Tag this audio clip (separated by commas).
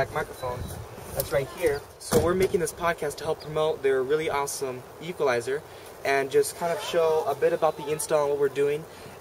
Speech